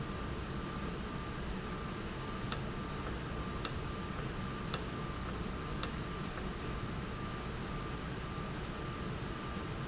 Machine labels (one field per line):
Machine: valve